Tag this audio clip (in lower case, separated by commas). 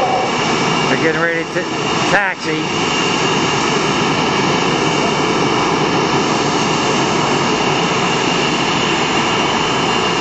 vehicle, speech, airplane, aircraft, aircraft engine